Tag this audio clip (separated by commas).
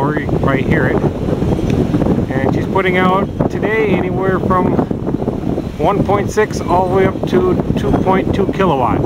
Speech, Wind noise (microphone)